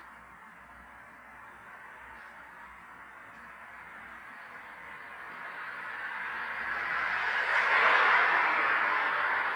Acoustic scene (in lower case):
street